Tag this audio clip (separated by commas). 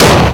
Explosion